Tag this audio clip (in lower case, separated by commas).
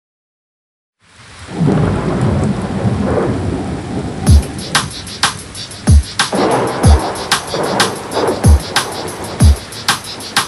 hip hop music, music